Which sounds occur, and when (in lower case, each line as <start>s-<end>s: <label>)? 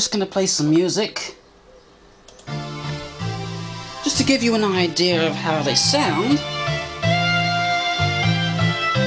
0.0s-1.4s: man speaking
0.0s-9.0s: mechanisms
0.6s-0.8s: generic impact sounds
1.2s-1.4s: generic impact sounds
1.4s-2.2s: bird call
2.2s-2.4s: generic impact sounds
2.5s-9.0s: music
4.0s-6.4s: man speaking